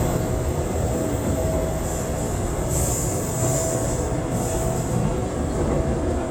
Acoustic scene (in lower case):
subway train